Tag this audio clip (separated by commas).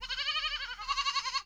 livestock, Animal